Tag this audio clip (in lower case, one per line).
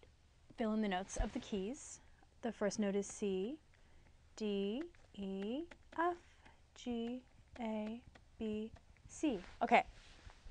speech